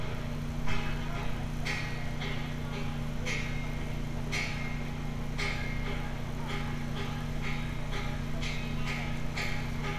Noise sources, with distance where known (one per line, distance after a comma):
unidentified impact machinery